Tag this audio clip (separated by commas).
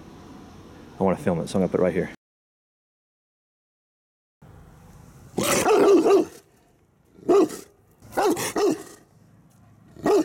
dog growling